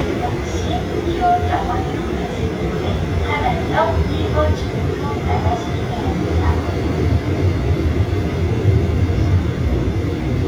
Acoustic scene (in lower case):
subway train